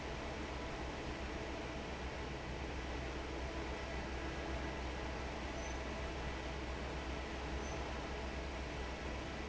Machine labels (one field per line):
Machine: fan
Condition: normal